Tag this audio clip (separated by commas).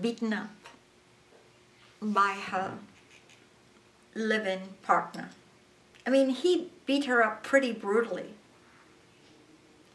Speech